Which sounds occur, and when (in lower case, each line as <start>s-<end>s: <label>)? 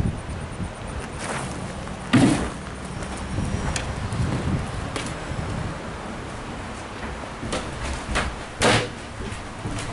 0.0s-1.7s: wind noise (microphone)
0.0s-9.9s: motor vehicle (road)
0.0s-9.9s: wind
1.0s-1.4s: generic impact sounds
1.8s-1.9s: generic impact sounds
2.1s-2.5s: generic impact sounds
2.9s-3.2s: generic impact sounds
3.0s-6.1s: wind noise (microphone)
3.0s-3.6s: squeal
3.5s-3.8s: generic impact sounds
4.8s-5.0s: generic impact sounds
6.8s-7.1s: generic impact sounds
7.4s-7.5s: generic impact sounds
7.7s-8.2s: generic impact sounds
8.5s-8.8s: generic impact sounds
9.0s-9.9s: generic impact sounds